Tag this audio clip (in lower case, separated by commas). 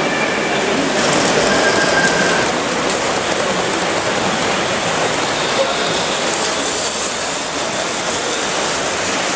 train, steam